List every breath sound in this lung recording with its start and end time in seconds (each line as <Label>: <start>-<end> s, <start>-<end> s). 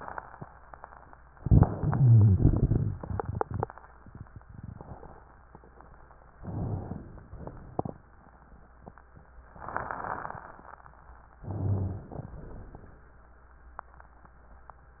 Inhalation: 1.33-2.32 s, 6.40-7.36 s, 11.44-12.31 s
Exhalation: 2.32-2.94 s, 7.36-8.01 s, 12.31-13.07 s
Rhonchi: 1.88-2.33 s, 6.40-7.10 s, 11.44-12.14 s
Crackles: 2.37-2.85 s